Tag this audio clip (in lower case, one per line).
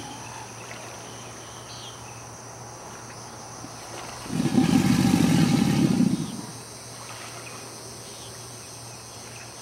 environmental noise
animal
wild animals
roar